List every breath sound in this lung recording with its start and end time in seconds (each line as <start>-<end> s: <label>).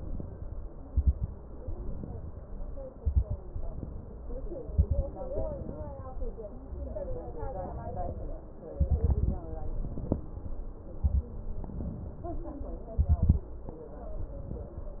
0.00-0.81 s: inhalation
0.85-1.38 s: exhalation
0.85-1.38 s: crackles
1.58-2.39 s: inhalation
2.91-3.44 s: exhalation
2.91-3.44 s: crackles
3.57-4.39 s: inhalation
4.67-5.11 s: exhalation
4.67-5.11 s: crackles
5.32-6.13 s: inhalation
7.43-8.47 s: inhalation
8.74-9.44 s: exhalation
8.74-9.44 s: crackles
9.56-10.60 s: inhalation
10.96-11.38 s: exhalation
10.96-11.38 s: crackles
11.50-12.62 s: inhalation
12.92-13.51 s: exhalation
12.92-13.51 s: crackles
14.02-15.00 s: inhalation